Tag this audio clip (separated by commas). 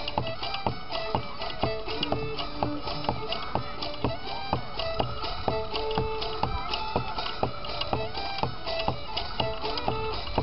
Speech, Music, Violin, Musical instrument